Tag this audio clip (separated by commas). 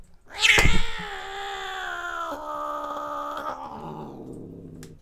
Growling, Domestic animals, Animal, Cat